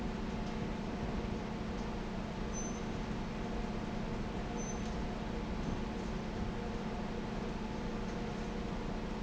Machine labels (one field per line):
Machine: fan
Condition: abnormal